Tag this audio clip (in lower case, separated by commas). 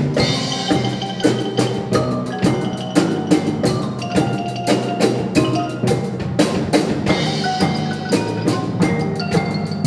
rimshot, percussion, drum, snare drum, bass drum, drum kit